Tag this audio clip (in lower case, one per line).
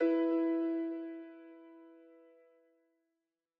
music
musical instrument
piano
keyboard (musical)